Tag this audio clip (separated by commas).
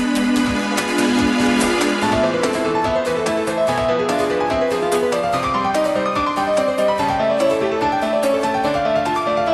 Theme music, Music